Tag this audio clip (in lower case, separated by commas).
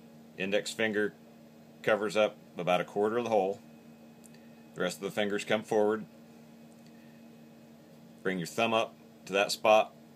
speech